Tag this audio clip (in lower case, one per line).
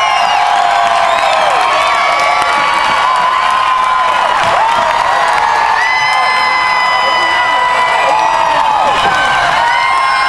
speech